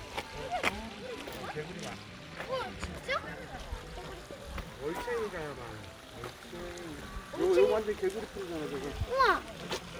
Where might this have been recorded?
in a park